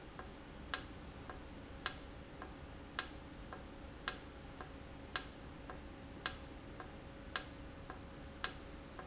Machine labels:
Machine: valve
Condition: normal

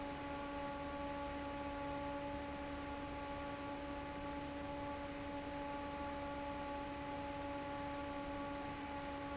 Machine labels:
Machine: fan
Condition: normal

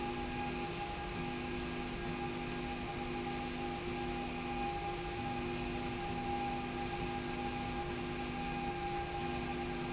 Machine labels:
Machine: slide rail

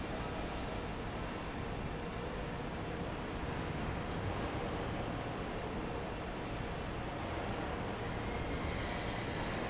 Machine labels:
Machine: fan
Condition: normal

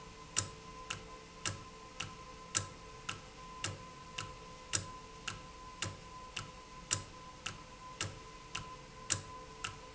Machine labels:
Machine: valve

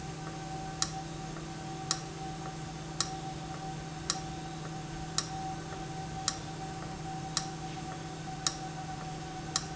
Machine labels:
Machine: valve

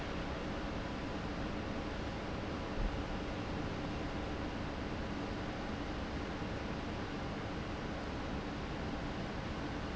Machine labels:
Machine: fan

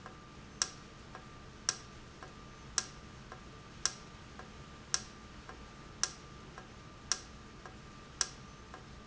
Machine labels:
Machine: valve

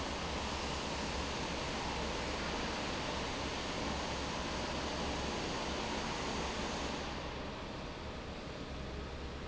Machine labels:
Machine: fan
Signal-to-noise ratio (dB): -6 dB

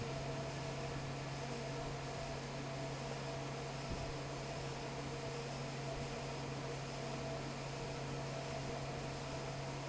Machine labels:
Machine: fan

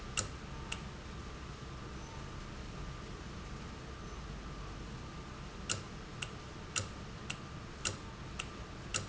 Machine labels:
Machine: valve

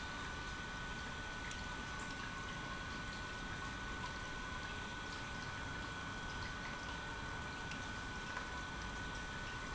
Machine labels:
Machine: pump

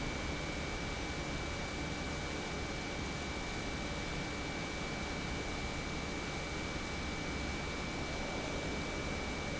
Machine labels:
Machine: pump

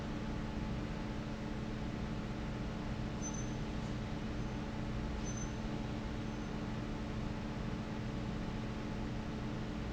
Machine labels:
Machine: fan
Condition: abnormal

